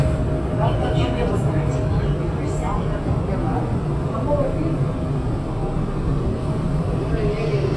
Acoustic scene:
subway train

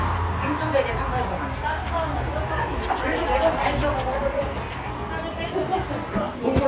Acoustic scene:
cafe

